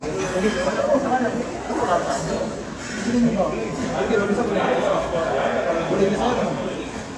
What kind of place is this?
restaurant